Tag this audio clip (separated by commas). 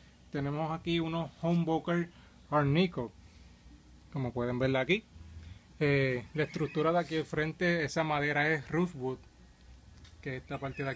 Speech